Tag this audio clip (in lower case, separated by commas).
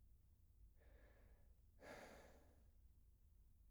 respiratory sounds, breathing